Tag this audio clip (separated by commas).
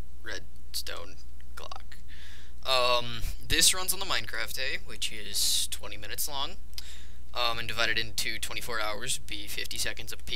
Speech